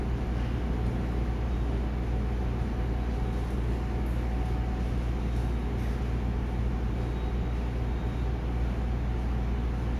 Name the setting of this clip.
subway station